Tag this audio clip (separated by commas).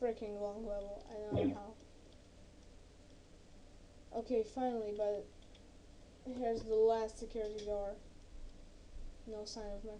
Speech